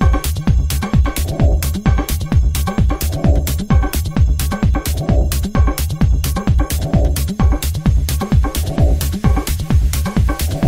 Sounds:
techno
music

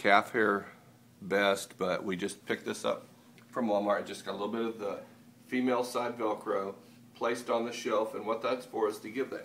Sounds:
speech

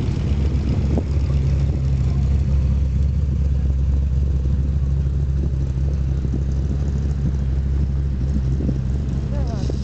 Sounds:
car passing by
speech
car
vehicle

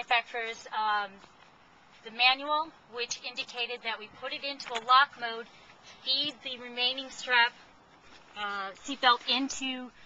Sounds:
speech

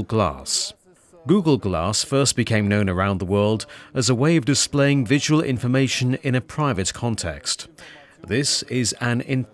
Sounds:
speech

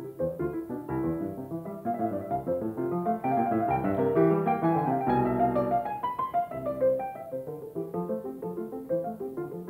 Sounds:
harpsichord
keyboard (musical)

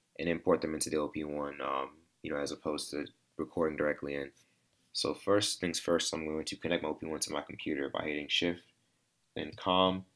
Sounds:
speech

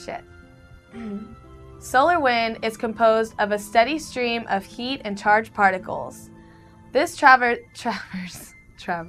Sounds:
music
speech
inside a small room

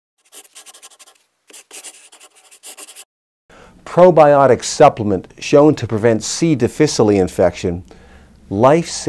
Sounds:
speech
inside a large room or hall

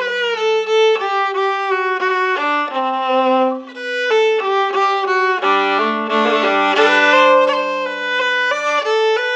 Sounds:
music

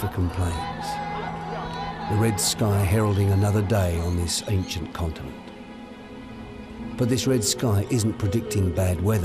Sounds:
speech

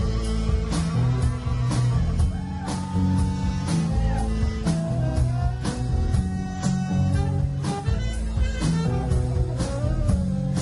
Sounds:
music
psychedelic rock

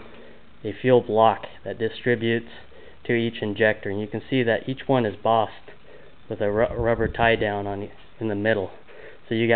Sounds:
speech

